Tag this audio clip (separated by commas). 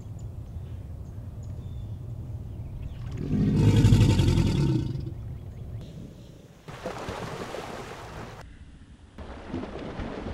crocodiles hissing